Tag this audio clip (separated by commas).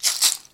Percussion, Music, Musical instrument, Rattle (instrument)